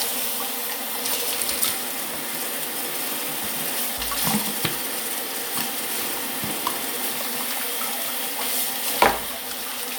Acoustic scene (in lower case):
restroom